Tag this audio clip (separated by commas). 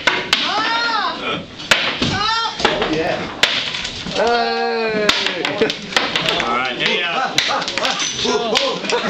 Speech